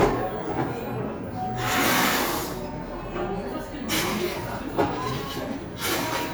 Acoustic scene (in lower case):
cafe